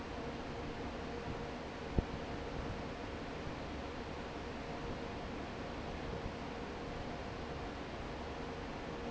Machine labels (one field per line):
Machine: fan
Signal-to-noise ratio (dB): 0 dB